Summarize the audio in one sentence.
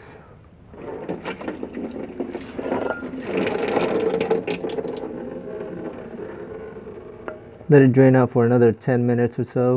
Liquid trickling and dribbling with male narrator